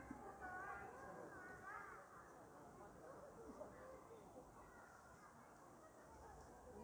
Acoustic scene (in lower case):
park